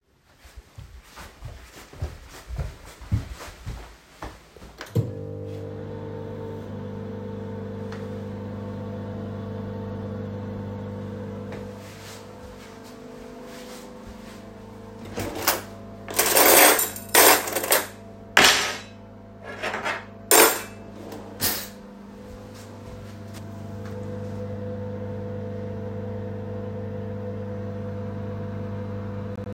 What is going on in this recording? Im walking to the microwave turn it on and get a spoon out of the drawer